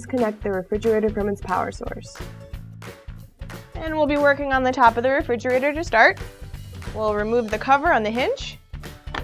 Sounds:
speech
music

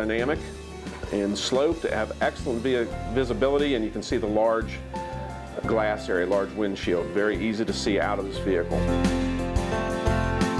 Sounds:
speech
music

